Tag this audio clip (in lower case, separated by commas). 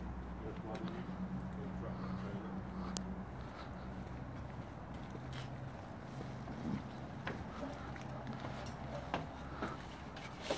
speech